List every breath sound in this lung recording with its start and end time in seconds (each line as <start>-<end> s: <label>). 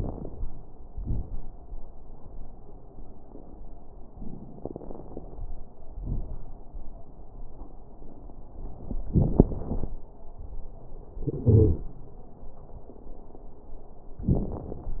0.00-0.50 s: inhalation
0.00-0.50 s: crackles
0.90-1.43 s: exhalation
0.90-1.43 s: crackles
4.60-5.45 s: inhalation
4.60-5.45 s: crackles
5.99-6.64 s: exhalation
5.99-6.64 s: crackles
11.49-11.82 s: wheeze